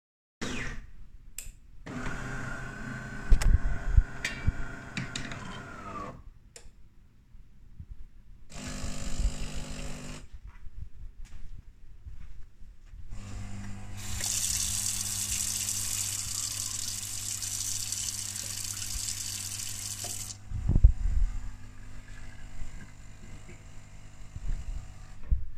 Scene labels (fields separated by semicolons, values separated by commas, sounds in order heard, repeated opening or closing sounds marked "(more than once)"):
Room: kitchen; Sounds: coffee machine, running water